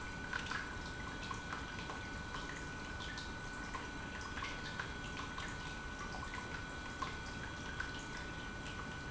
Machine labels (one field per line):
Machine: pump